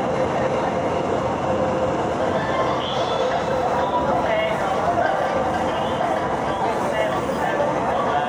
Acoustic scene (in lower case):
subway train